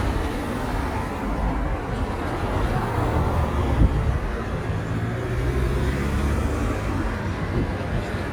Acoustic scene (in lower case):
street